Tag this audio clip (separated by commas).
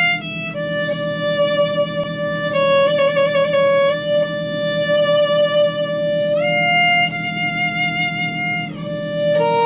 Violin, Musical instrument, Music